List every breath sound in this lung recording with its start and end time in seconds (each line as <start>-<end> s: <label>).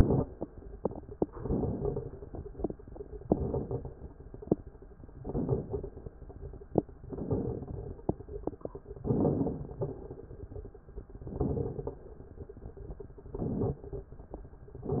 1.31-2.05 s: inhalation
1.31-2.05 s: crackles
3.26-4.00 s: inhalation
3.26-4.00 s: crackles
5.22-5.96 s: inhalation
5.22-5.96 s: crackles
7.08-7.95 s: inhalation
7.08-7.95 s: crackles
9.03-9.79 s: inhalation
9.03-9.79 s: crackles
11.20-11.96 s: inhalation
11.20-11.96 s: crackles
13.36-14.12 s: inhalation
13.36-14.12 s: crackles